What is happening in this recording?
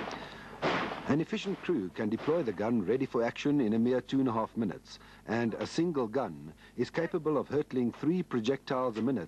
A man is verbally communicating something while gunshots are being fired